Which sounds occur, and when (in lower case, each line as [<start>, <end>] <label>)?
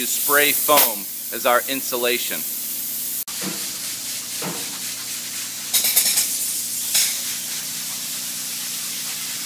[0.00, 9.45] mechanisms
[0.00, 9.45] spray
[1.30, 2.43] man speaking
[6.91, 7.15] generic impact sounds